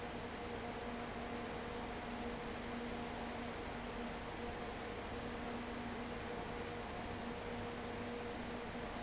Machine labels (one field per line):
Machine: fan